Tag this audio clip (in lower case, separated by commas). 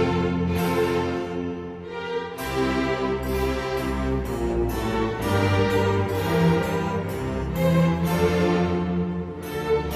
keyboard (musical), piano, electric piano